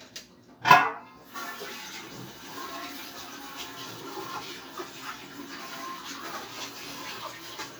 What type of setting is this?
kitchen